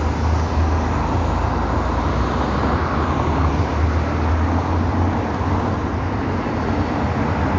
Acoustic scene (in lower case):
street